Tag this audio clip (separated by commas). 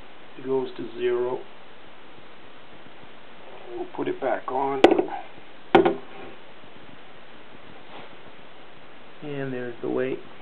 Speech